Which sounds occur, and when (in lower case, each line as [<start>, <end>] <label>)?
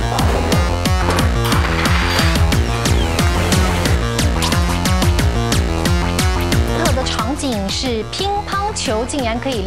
[0.00, 9.65] music
[1.36, 3.33] sound effect
[4.12, 4.86] sound effect
[6.28, 7.09] sound effect
[6.64, 9.65] conversation
[6.65, 9.65] woman speaking